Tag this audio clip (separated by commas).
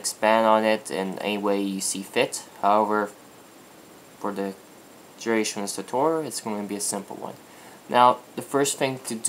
Speech